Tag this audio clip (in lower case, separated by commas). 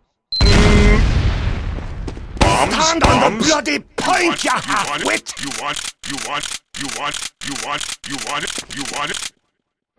speech